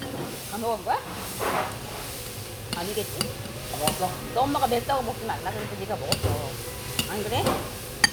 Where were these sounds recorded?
in a restaurant